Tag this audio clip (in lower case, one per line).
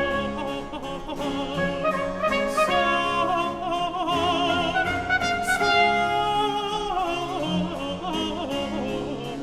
music